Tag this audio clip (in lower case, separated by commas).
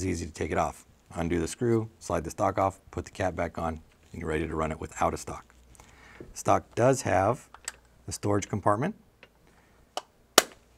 inside a small room, speech